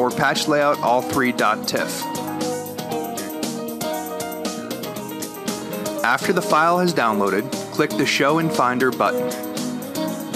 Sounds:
Music, Speech

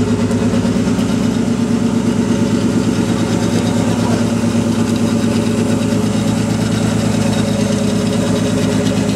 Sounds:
Idling, Car, Vehicle

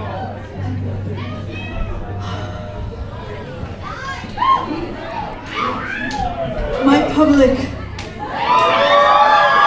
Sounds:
Speech

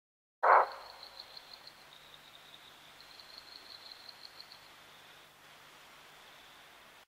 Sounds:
Clatter

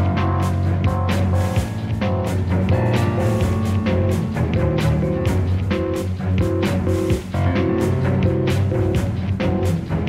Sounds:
Music

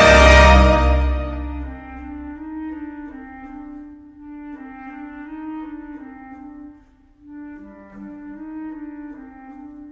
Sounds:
Clarinet, Music

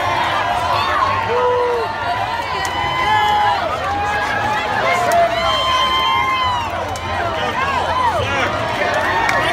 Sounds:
Speech

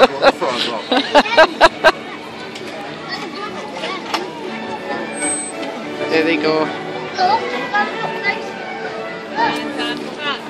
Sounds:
Speech, Music

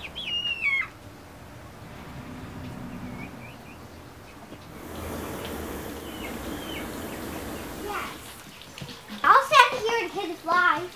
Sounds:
Animal, Speech, Chicken

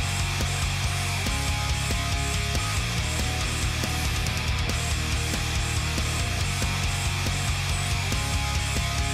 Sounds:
Music

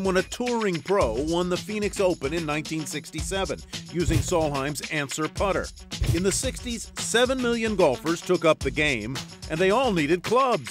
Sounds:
Music, Speech

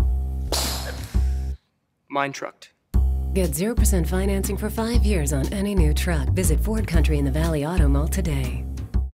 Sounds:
Music, Speech

